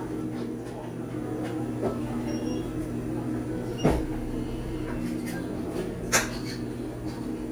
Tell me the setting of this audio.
cafe